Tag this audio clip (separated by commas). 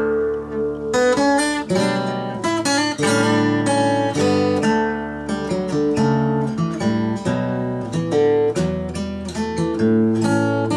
Music